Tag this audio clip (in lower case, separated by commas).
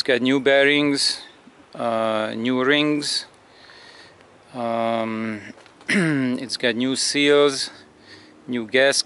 speech